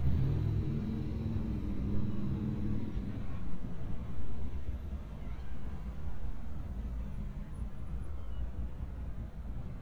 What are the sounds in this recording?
small-sounding engine, medium-sounding engine